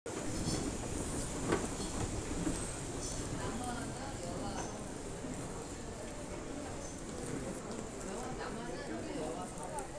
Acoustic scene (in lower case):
crowded indoor space